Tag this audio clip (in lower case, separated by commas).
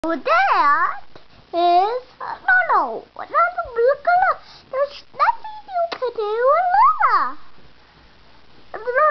kid speaking, inside a small room, speech